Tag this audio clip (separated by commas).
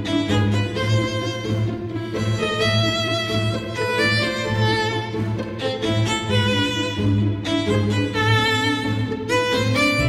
Music, Cello